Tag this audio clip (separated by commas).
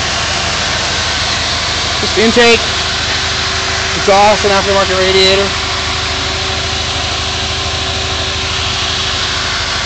Engine